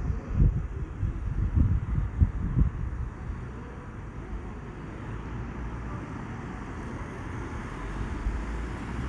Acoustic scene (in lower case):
street